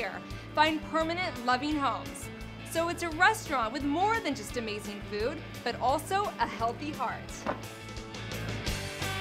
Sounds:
music, speech

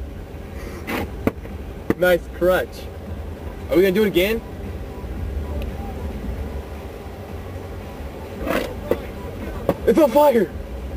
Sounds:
speech

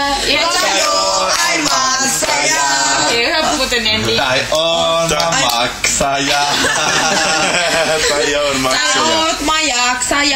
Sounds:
speech, female singing, male singing

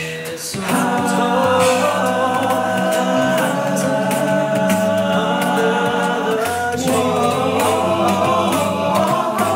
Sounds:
vocal music, singing, music

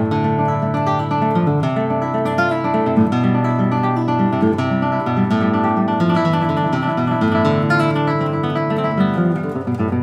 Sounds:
music, plucked string instrument, guitar, musical instrument, acoustic guitar

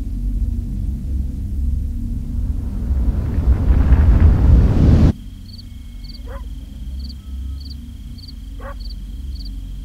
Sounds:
outside, rural or natural

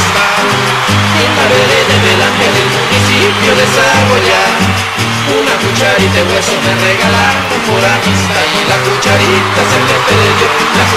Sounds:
male singing, music

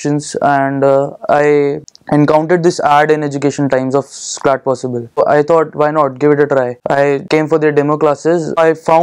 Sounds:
speech

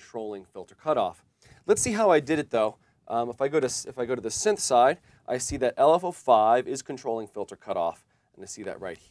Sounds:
speech

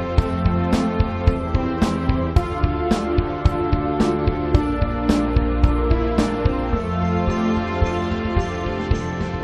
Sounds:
soundtrack music, music

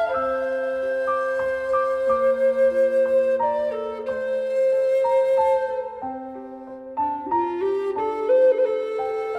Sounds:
music

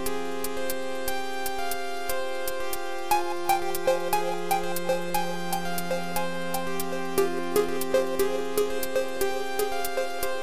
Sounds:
tick-tock, music

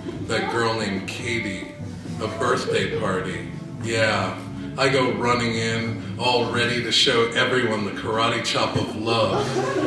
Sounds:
music, speech

